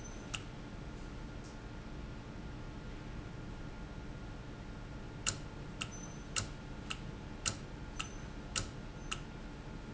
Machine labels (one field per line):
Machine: valve